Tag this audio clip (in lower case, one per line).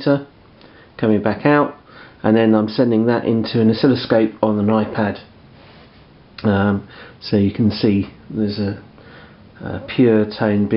speech